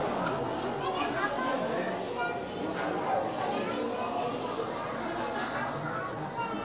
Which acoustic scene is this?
crowded indoor space